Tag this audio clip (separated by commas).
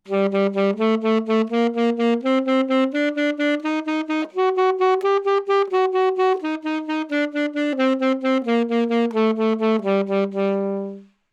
Wind instrument, Music, Musical instrument